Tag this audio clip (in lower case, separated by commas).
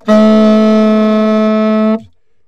musical instrument, woodwind instrument, music